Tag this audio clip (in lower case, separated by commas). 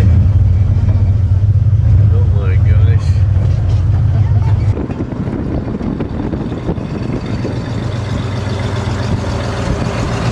speech